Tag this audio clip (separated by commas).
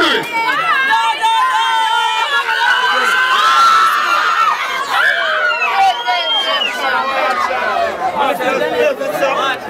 Crowd, Cheering